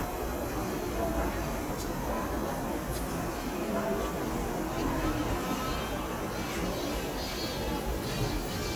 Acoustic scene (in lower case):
subway station